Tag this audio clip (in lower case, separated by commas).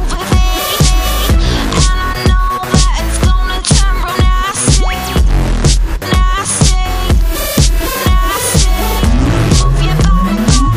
music, disco